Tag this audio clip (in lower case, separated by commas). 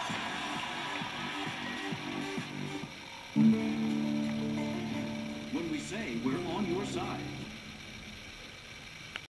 music, speech